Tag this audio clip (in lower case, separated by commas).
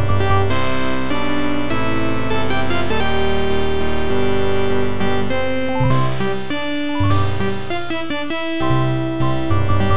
music